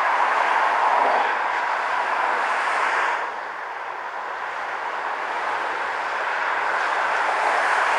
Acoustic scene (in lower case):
street